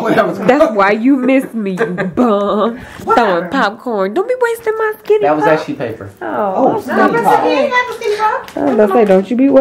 A woman speaks, a group of people hanging out and laughing